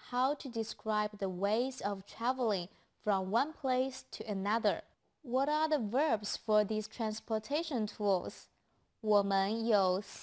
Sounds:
Speech

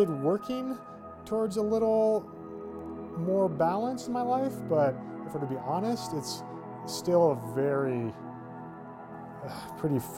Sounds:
Music, Speech

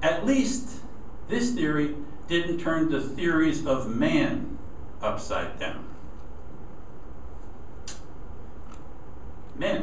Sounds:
Speech, inside a large room or hall

